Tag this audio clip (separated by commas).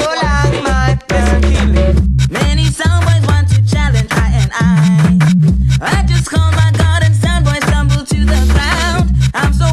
Scratching (performance technique), Music